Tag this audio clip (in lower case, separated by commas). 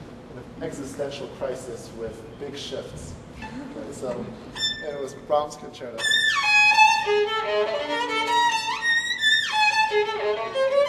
speech, musical instrument, music, fiddle